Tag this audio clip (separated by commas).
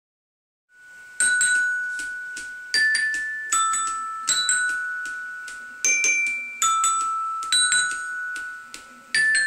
Marimba, Musical instrument, Music